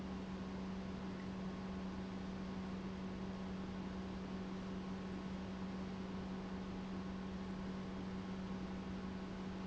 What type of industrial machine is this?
pump